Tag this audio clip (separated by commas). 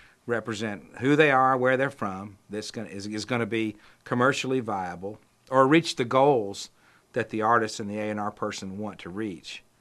Speech